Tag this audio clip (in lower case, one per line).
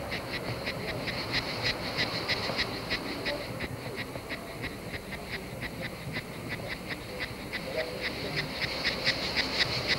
animal